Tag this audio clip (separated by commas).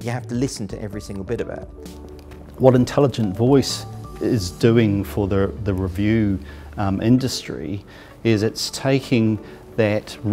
man speaking, Music, Conversation, Speech